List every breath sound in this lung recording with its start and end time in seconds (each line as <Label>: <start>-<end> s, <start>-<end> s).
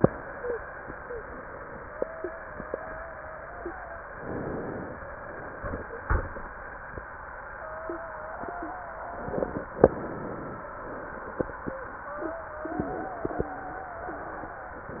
Inhalation: 4.14-5.00 s, 9.82-10.68 s, 14.88-15.00 s
Wheeze: 1.83-4.04 s, 7.53-9.58 s, 11.63-14.26 s